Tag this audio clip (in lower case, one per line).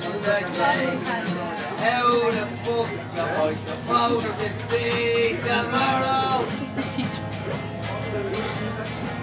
speech
music
male singing